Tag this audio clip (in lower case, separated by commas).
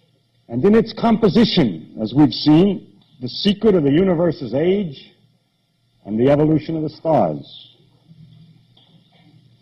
narration, speech